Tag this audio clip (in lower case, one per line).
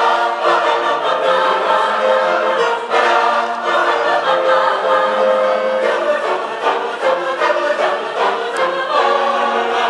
singing choir